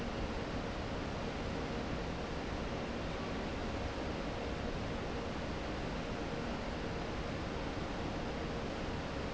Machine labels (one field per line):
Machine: fan